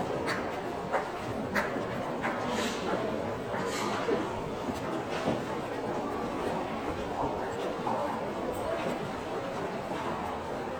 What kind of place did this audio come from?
crowded indoor space